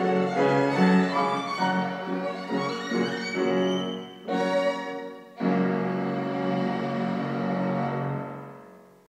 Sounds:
Music

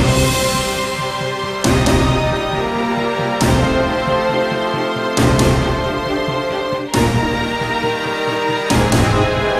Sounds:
Theme music, Music

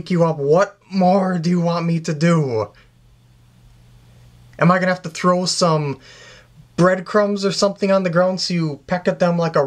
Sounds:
Speech

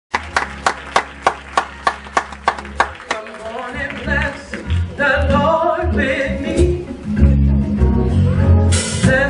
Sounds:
Gospel music, Singing, Christian music, Male singing, Music

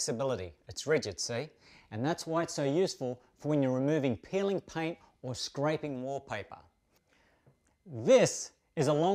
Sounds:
Speech

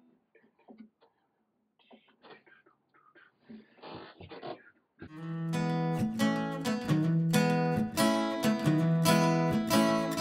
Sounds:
Music, Acoustic guitar

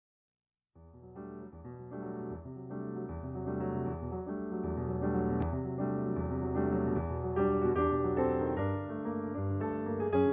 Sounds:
Keyboard (musical), Piano

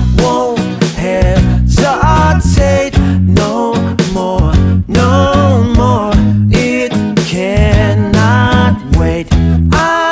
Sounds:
Music

